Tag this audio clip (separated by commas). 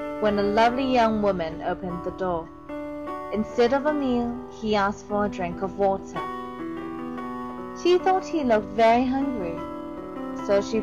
Music, Speech